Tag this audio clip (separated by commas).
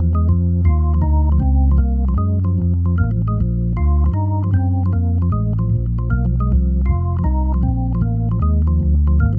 Electronic organ, Organ